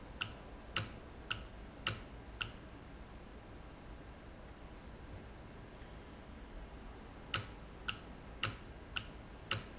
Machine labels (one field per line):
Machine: valve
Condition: normal